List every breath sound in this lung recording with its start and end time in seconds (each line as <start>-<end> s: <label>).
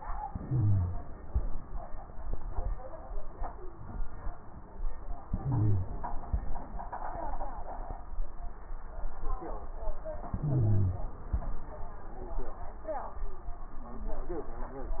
0.26-1.07 s: inhalation
0.26-1.07 s: wheeze
5.25-6.06 s: inhalation
5.25-6.06 s: wheeze
5.25-6.06 s: wheeze
10.32-11.13 s: inhalation
10.32-11.13 s: wheeze